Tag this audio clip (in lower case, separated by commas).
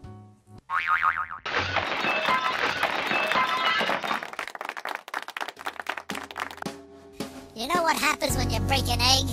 speech, music